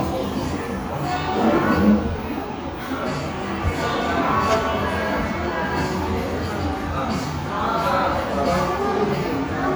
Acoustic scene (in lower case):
crowded indoor space